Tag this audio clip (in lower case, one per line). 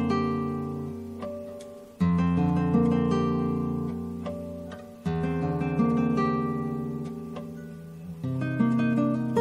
guitar
music
musical instrument